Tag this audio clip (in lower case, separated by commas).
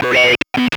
human voice, speech